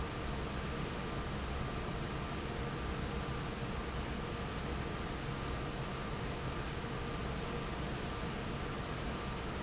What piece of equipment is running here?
fan